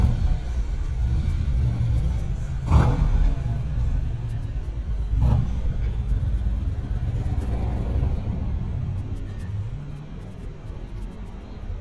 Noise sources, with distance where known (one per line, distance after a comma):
medium-sounding engine, near